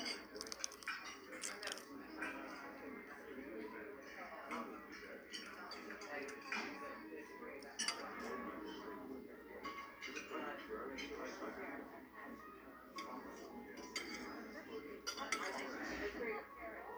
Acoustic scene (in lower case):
restaurant